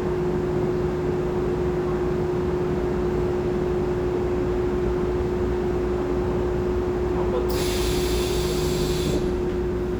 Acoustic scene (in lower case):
subway train